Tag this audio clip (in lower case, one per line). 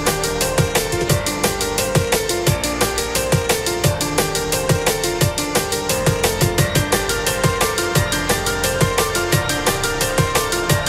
music